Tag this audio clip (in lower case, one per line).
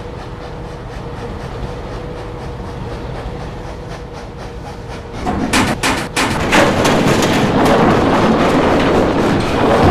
vehicle
train